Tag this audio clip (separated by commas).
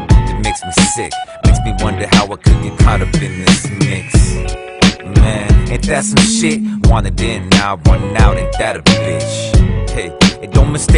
Music